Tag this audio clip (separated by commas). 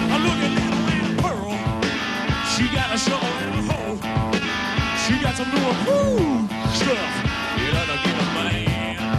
Blues, Music